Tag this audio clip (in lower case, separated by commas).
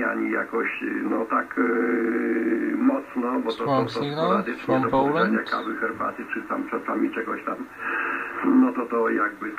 radio, speech